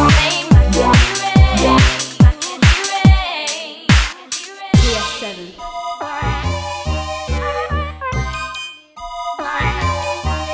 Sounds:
music, hip hop music

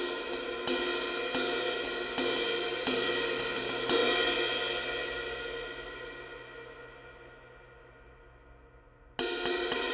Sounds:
music

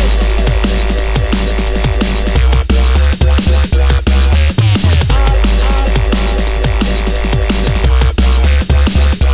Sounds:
electronic music, music

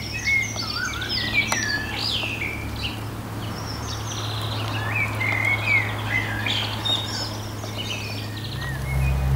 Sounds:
bird, bird vocalization

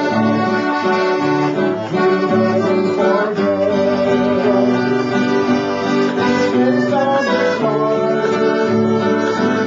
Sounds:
music

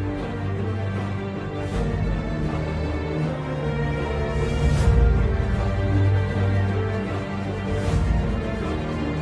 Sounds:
music

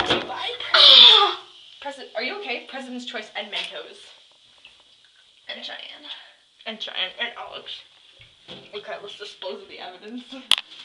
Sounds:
speech

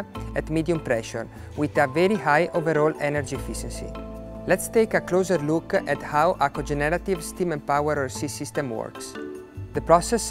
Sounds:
speech, music

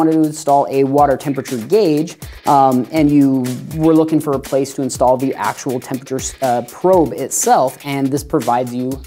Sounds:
music, speech

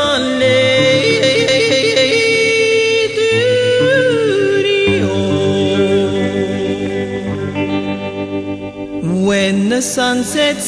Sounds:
yodeling, music, singing

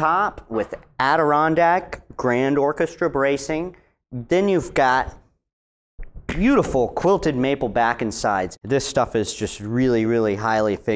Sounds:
speech

